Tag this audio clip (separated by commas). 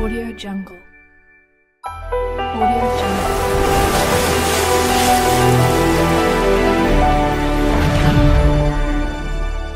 Speech, Music